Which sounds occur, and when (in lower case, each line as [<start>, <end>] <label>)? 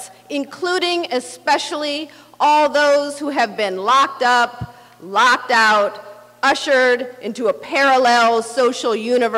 [0.00, 0.22] breathing
[0.00, 9.35] background noise
[0.30, 2.03] female speech
[2.08, 2.33] breathing
[2.34, 4.86] female speech
[4.72, 5.00] breathing
[5.00, 6.26] female speech
[6.43, 9.35] female speech